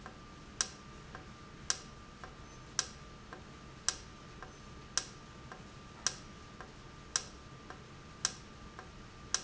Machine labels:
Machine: valve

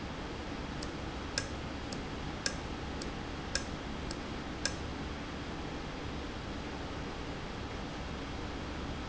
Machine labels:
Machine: valve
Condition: normal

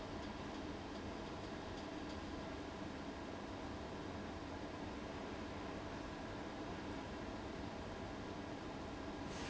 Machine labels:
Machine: fan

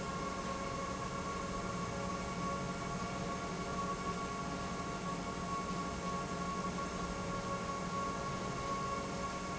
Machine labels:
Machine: pump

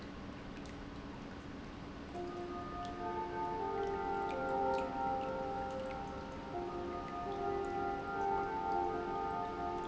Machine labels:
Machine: pump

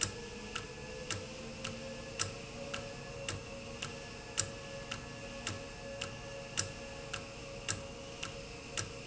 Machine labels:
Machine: valve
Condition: normal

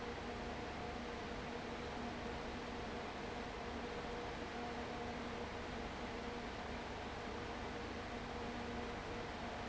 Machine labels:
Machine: fan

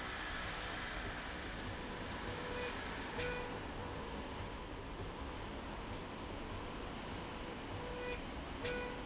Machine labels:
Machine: slide rail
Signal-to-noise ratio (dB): 0 dB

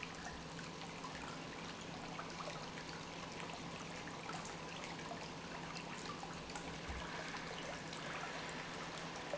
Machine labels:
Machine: pump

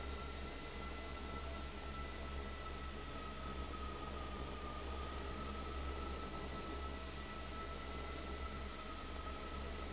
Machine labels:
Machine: fan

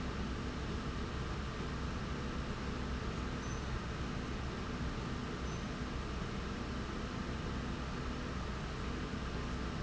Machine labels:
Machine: slide rail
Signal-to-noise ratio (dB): -6 dB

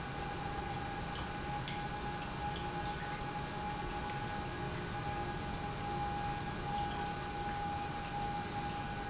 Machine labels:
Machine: pump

